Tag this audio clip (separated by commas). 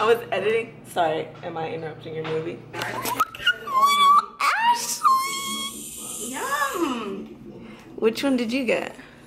Speech, inside a large room or hall